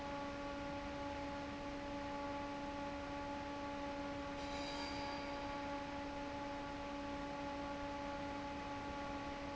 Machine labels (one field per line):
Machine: fan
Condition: normal